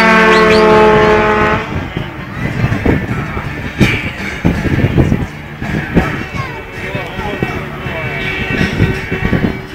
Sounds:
Vehicle, Speech, Truck

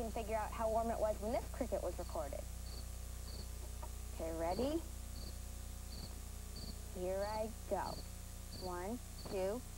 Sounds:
Insect, Cricket

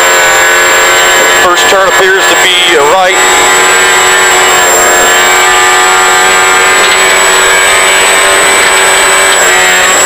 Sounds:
Speech

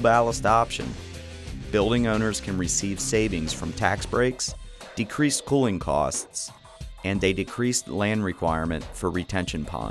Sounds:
Music, Speech

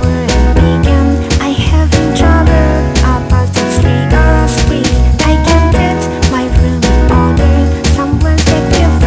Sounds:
Music

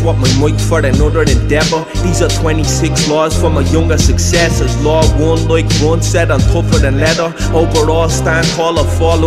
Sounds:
Music

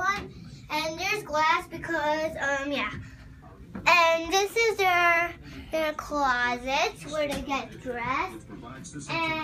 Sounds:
kid speaking, Speech, inside a small room

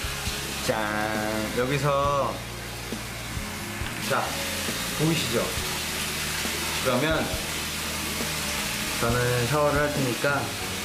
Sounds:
Speech, Music

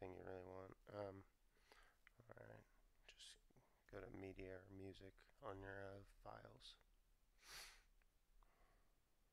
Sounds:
Speech

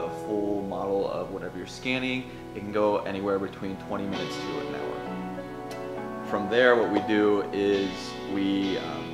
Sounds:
bird wings flapping

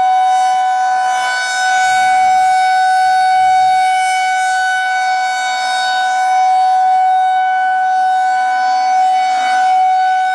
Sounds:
Siren, Civil defense siren

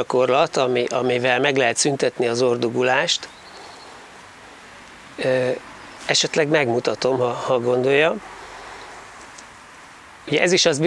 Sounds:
Speech, Male speech, Rustling leaves

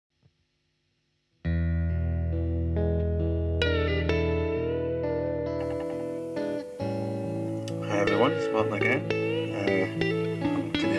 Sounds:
Speech, Music

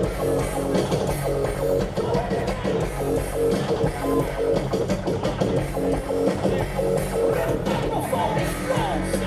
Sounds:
Music, Funk

